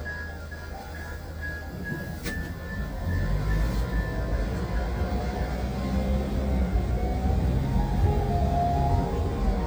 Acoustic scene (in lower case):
car